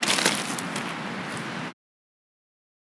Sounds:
Ocean, Water, Waves

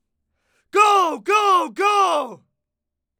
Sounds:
Human voice, Speech, man speaking, Shout

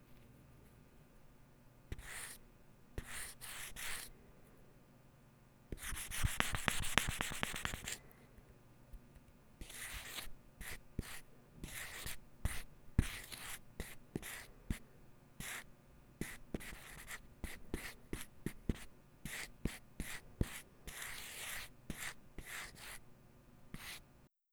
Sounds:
Domestic sounds, Writing

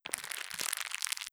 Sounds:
Crackle

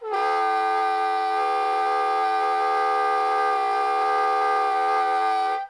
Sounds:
woodwind instrument, Musical instrument, Music

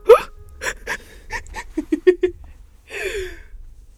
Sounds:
Human voice, Giggle, Laughter

